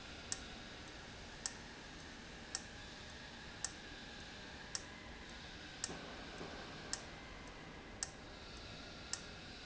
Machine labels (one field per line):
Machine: valve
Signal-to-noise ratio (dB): 6 dB